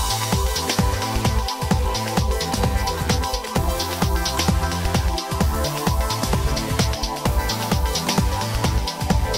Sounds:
music

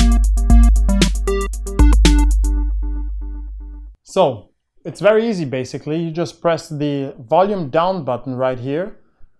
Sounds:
synthesizer

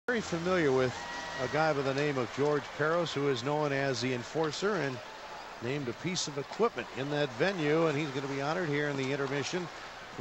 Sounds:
speech

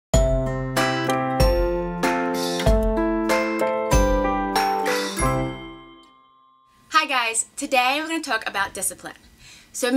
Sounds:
music for children, speech, music

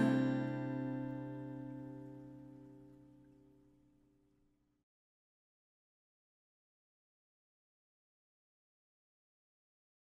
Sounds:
musical instrument, plucked string instrument, guitar

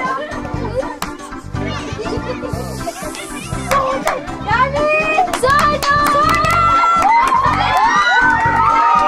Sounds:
speech, music

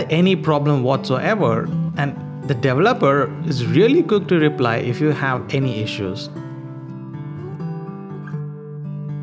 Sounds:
acoustic guitar

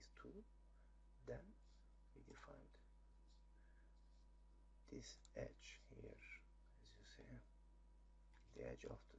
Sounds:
speech

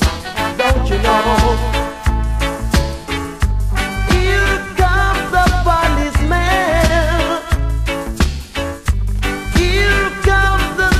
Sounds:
music

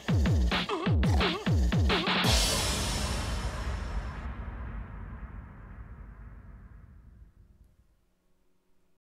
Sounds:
drum and bass, music

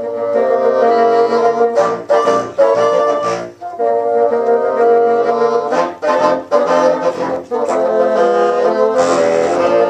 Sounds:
playing bassoon

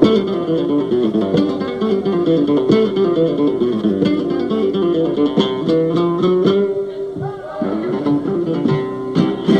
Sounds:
speech, music, flamenco, guitar

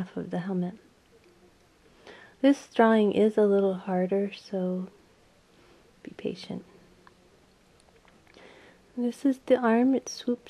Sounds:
speech

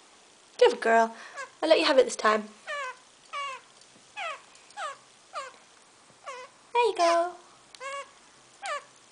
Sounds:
speech, inside a small room, bird, domestic animals

